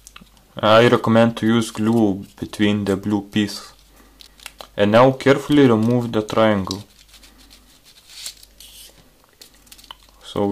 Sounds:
inside a small room, Speech

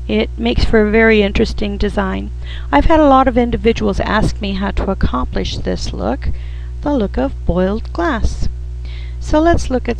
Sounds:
Speech

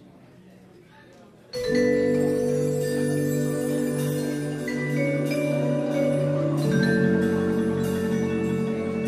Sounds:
Music, Percussion

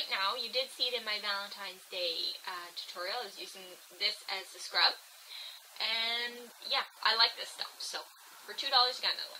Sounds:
Speech, inside a small room

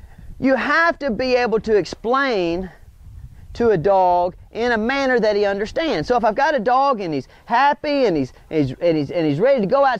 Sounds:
Speech

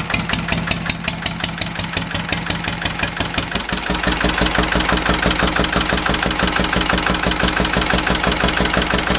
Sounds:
Engine, Idling

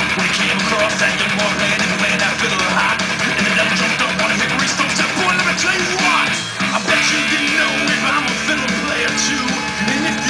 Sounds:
Music, Musical instrument

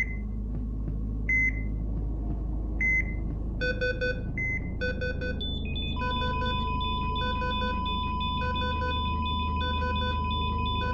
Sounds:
heartbeat

